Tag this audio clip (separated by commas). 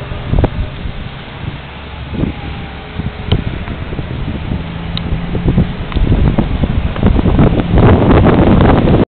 Vehicle